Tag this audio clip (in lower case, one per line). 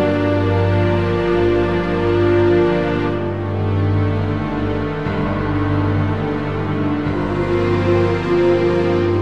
music